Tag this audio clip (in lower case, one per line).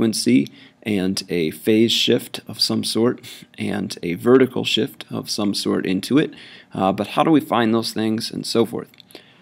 speech